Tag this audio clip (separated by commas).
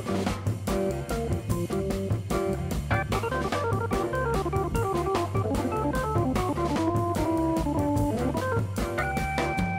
Music, Jazz